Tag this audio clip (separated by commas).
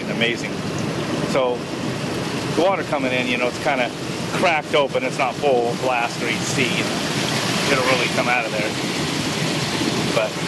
Fill (with liquid), Liquid, Speech